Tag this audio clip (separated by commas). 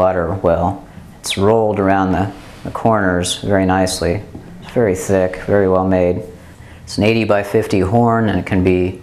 Speech